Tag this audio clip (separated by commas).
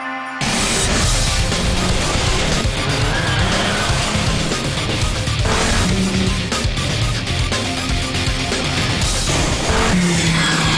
Car, Vehicle, Car passing by, Music, Motor vehicle (road)